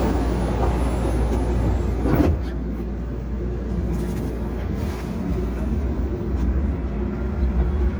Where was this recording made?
on a subway train